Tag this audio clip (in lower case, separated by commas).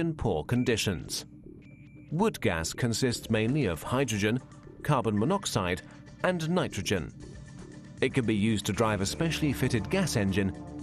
music, speech